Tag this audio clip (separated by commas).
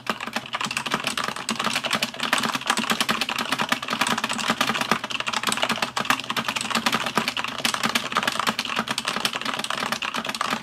Computer keyboard